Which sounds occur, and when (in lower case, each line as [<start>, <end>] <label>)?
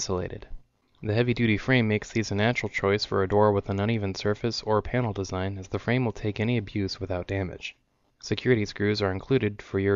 [0.00, 0.67] male speech
[0.00, 9.95] background noise
[0.47, 0.53] tick
[0.83, 1.02] breathing
[1.05, 7.86] male speech
[7.93, 8.22] breathing
[8.29, 9.95] male speech